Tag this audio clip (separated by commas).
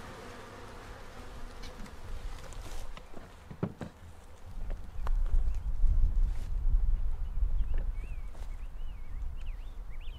Music